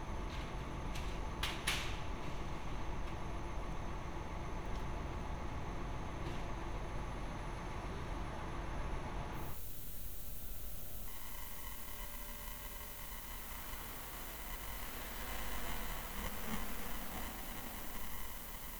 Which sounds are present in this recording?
background noise